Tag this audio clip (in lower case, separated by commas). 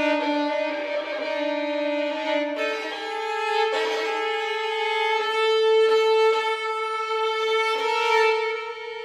music, musical instrument, violin